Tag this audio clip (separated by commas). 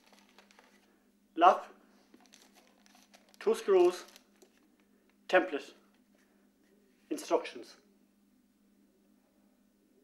Speech